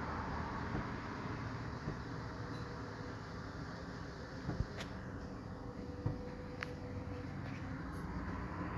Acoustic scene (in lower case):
street